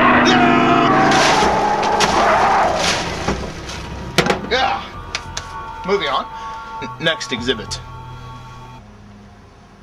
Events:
0.0s-8.7s: music
0.2s-1.1s: shout
1.0s-1.4s: crumpling
1.1s-2.7s: animal
1.8s-1.8s: generic impact sounds
1.9s-2.0s: generic impact sounds
2.7s-3.0s: crumpling
3.2s-3.4s: thump
3.6s-3.8s: generic impact sounds
4.1s-4.3s: generic impact sounds
4.5s-4.9s: male speech
5.0s-5.2s: clapping
5.3s-5.4s: clapping
5.7s-5.8s: clicking
5.8s-6.2s: male speech
6.2s-6.7s: human sounds
6.4s-6.5s: clicking
6.7s-6.8s: male speech
7.0s-7.8s: male speech
8.7s-9.8s: mechanisms
9.0s-9.1s: clicking

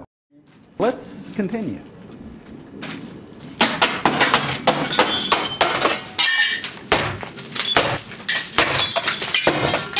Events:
0.2s-9.9s: wind
0.7s-1.8s: male speech
2.7s-3.0s: walk
3.5s-4.5s: thwack
4.3s-4.6s: shatter
4.6s-4.8s: thwack
4.9s-5.6s: shatter
4.9s-5.2s: thwack
5.3s-5.5s: thwack
5.6s-6.0s: thwack
6.1s-6.6s: shatter
6.8s-7.1s: thwack
6.9s-7.2s: shatter
7.5s-8.2s: shatter
7.7s-8.0s: thwack
8.2s-9.9s: shatter
8.5s-8.9s: thwack
9.4s-9.8s: thwack

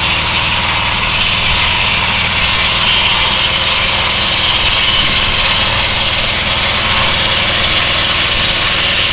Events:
0.0s-9.1s: sawing

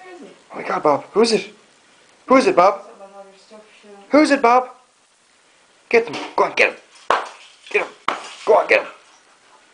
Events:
0.0s-0.3s: woman speaking
0.0s-8.9s: conversation
0.0s-9.7s: background noise
0.5s-1.0s: male speech
0.8s-0.9s: tick
1.1s-1.5s: male speech
2.0s-2.1s: tick
2.2s-2.6s: male speech
2.8s-4.1s: woman speaking
4.1s-4.7s: male speech
5.9s-6.1s: male speech
6.1s-6.2s: generic impact sounds
6.3s-6.7s: male speech
6.8s-7.5s: surface contact
7.0s-7.2s: generic impact sounds
7.6s-8.6s: surface contact
7.6s-7.8s: generic impact sounds
7.7s-7.8s: male speech
8.0s-8.2s: generic impact sounds
8.4s-8.9s: male speech

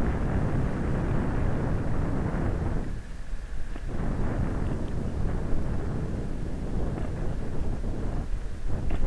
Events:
0.0s-3.0s: wind noise (microphone)
0.0s-9.0s: motor vehicle (road)
0.0s-9.0s: wind
3.8s-8.2s: wind noise (microphone)

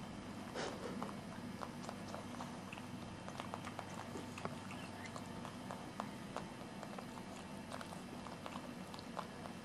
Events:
0.0s-9.6s: mechanisms
0.4s-1.1s: dog
1.3s-2.4s: dog
2.7s-6.1s: dog
6.3s-7.4s: dog
7.7s-9.6s: dog

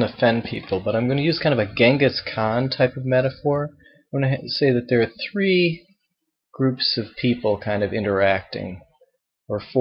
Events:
0.0s-3.7s: male speech
3.8s-4.1s: breathing
4.1s-5.8s: male speech
6.5s-8.8s: male speech
9.5s-9.8s: male speech

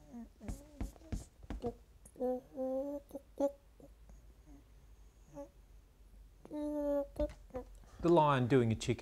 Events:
0.0s-0.3s: human voice
0.0s-9.0s: background noise
0.4s-1.3s: human voice
0.4s-0.5s: tap
0.5s-0.6s: scrape
0.8s-0.8s: tap
0.8s-0.9s: scrape
1.1s-1.1s: tap
1.1s-1.2s: scrape
1.4s-1.5s: tap
1.5s-1.7s: generic impact sounds
1.6s-1.8s: human voice
2.0s-2.1s: clicking
2.1s-3.0s: human voice
3.0s-3.2s: human voice
3.4s-3.5s: human voice
3.8s-3.8s: human voice
4.0s-4.1s: generic impact sounds
4.4s-4.6s: human voice
5.3s-5.5s: human voice
6.4s-6.5s: generic impact sounds
6.4s-7.0s: human voice
7.1s-7.2s: generic impact sounds
7.1s-7.3s: human voice
7.3s-7.3s: generic impact sounds
7.5s-7.5s: generic impact sounds
7.5s-7.7s: human voice
7.7s-7.8s: clicking
8.0s-9.0s: man speaking
8.0s-8.1s: clicking

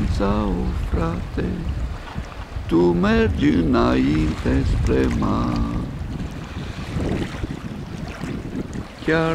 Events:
0.0s-1.6s: male singing
0.0s-8.8s: wind noise (microphone)
0.0s-9.3s: waves
0.7s-0.9s: bird vocalization
1.9s-2.6s: laughter
2.6s-5.9s: male singing
3.6s-3.7s: bird vocalization
9.0s-9.3s: male singing

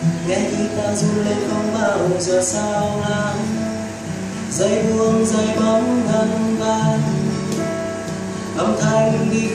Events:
0.0s-9.5s: music
0.3s-3.6s: male singing
4.5s-7.3s: male singing
8.6s-9.5s: male singing

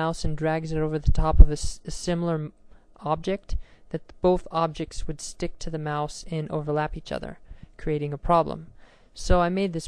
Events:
0.0s-2.5s: woman speaking
0.0s-9.8s: background noise
2.9s-3.6s: woman speaking
3.5s-3.8s: breathing
3.9s-7.4s: woman speaking
7.4s-7.7s: breathing
7.8s-8.7s: woman speaking
8.7s-9.1s: breathing
9.1s-9.8s: woman speaking

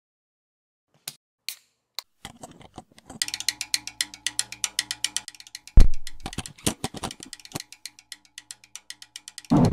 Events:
0.8s-1.2s: music
1.3s-9.7s: music

